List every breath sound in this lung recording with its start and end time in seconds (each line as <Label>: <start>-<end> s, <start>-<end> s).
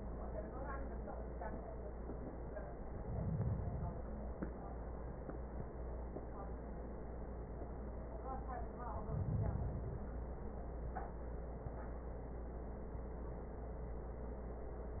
Inhalation: 2.83-4.33 s, 8.81-10.31 s